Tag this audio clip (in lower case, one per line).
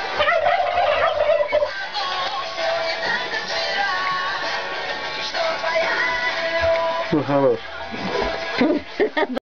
speech
music